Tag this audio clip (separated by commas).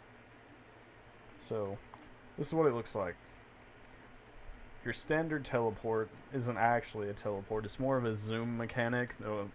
Speech